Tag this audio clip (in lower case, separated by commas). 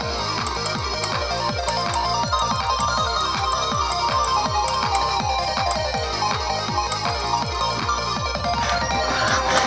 music